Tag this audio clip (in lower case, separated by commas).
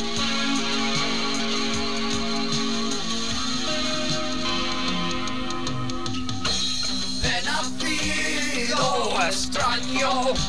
music